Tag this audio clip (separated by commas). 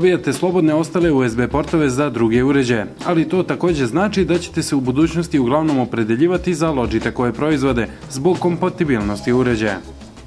Speech, Music